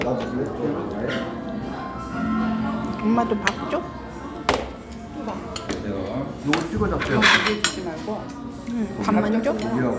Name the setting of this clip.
restaurant